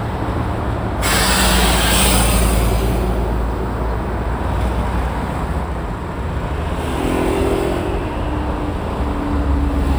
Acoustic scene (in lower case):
street